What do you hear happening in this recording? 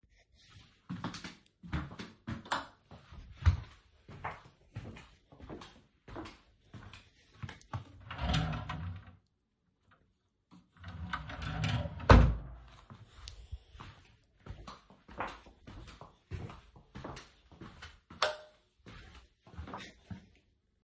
The phone was carried on the person throughout the recording. The person walked towards a light switch and turned it on then walked to a drawer and opened it leaving it open for a couple of seconds before closing it. After a brief exhale the person walked back to the light switch turned it off and walked away.